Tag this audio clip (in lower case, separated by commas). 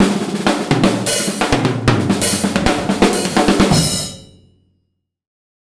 music, percussion, musical instrument, drum kit